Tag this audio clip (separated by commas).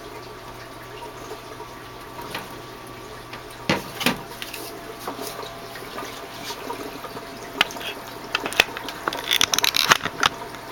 Water